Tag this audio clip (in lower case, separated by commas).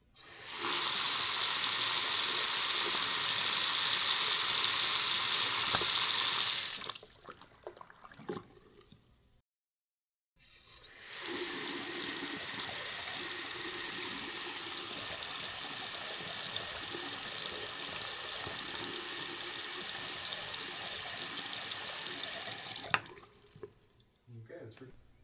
liquid, domestic sounds, sink (filling or washing), faucet